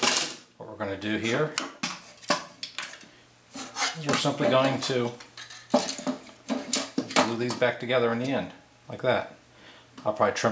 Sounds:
speech

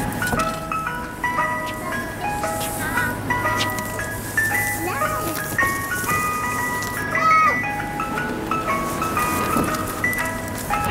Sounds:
ice cream van

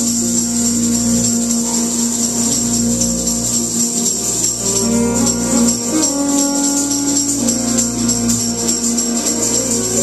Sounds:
music
jazz

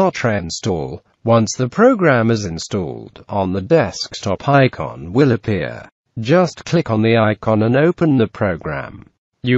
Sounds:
speech

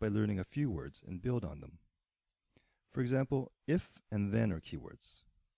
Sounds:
speech

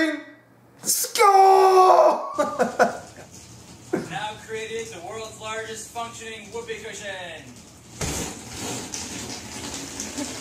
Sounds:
speech
inside a small room
laughter

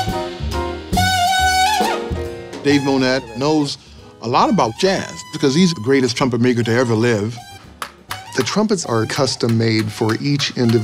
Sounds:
speech
music

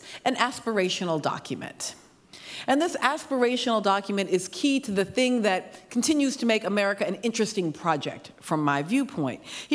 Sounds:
speech

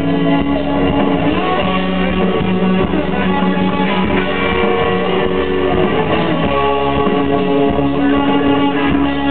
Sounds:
music

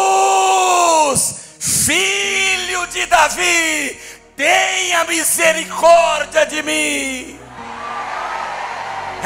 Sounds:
eagle screaming

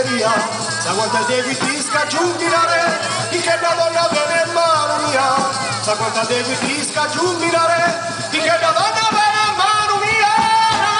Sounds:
traditional music
music

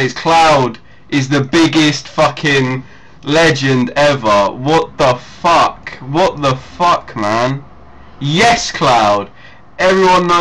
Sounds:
speech

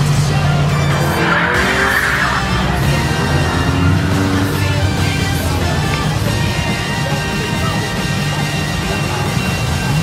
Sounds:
car passing by
music

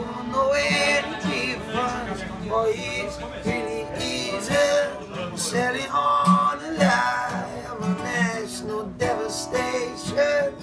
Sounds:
music
speech

